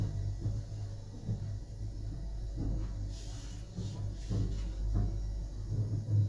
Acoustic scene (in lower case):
elevator